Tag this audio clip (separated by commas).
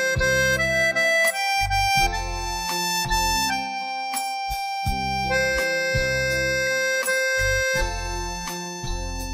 Music